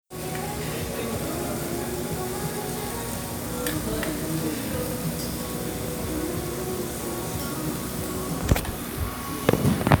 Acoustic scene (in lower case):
restaurant